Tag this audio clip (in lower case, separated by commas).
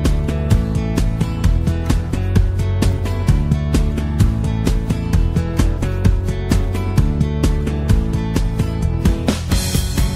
music